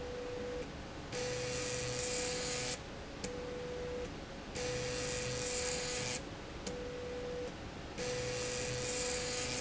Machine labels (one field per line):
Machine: slide rail